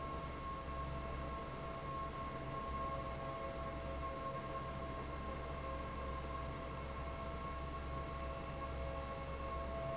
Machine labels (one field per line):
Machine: fan